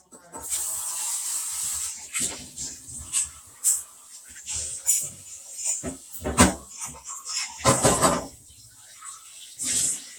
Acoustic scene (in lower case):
kitchen